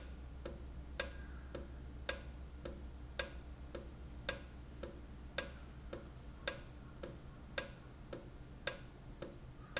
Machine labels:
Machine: valve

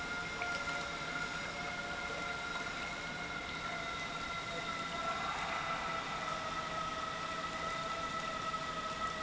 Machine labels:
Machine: pump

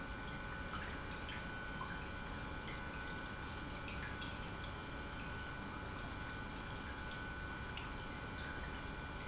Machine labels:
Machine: pump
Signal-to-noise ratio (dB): 6 dB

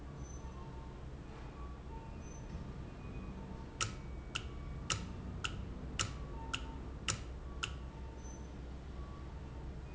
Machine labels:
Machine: valve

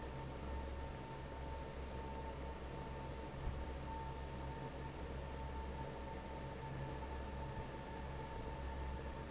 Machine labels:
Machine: fan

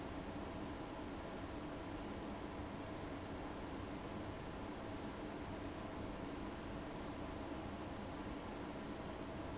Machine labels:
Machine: fan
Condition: abnormal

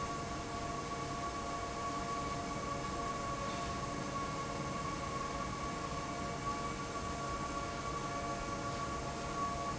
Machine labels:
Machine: fan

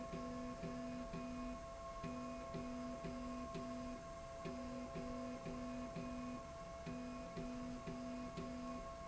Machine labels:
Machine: slide rail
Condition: normal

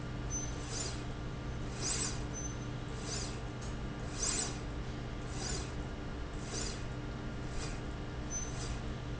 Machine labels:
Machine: slide rail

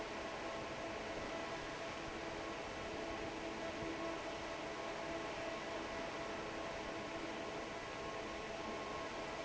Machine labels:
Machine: fan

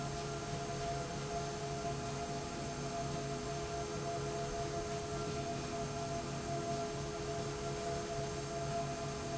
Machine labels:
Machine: slide rail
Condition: normal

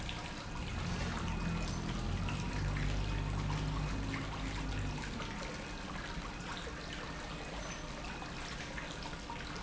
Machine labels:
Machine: pump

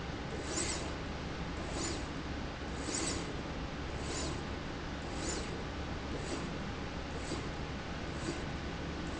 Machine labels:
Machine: slide rail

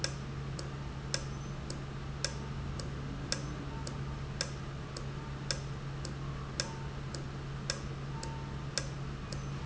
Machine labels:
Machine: valve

